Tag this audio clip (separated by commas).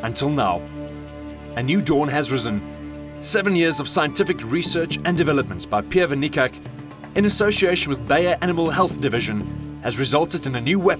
Speech, Music